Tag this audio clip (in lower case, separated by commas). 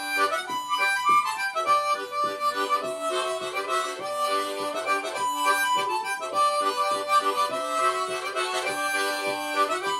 harmonica, blues, music